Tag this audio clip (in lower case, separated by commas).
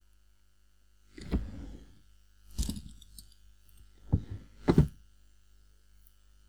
home sounds, drawer open or close